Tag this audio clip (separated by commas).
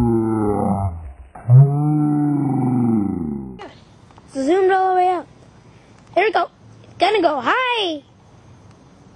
Speech, outside, urban or man-made